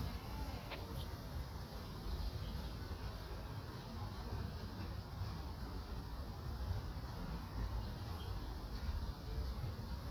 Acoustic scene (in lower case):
park